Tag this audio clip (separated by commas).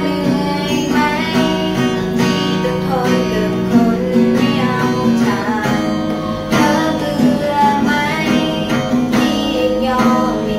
New-age music, Music